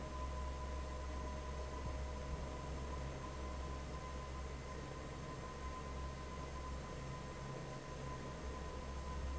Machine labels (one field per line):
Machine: fan